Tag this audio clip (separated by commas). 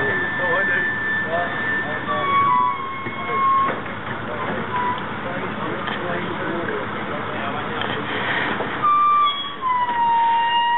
outside, urban or man-made, Speech, Vehicle